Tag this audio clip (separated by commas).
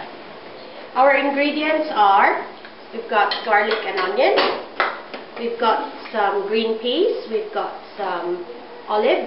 Speech